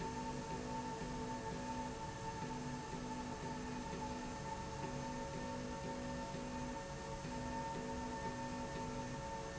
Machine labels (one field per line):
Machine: slide rail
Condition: normal